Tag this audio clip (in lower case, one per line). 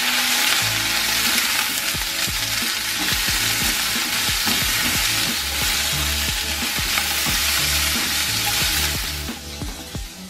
people eating noodle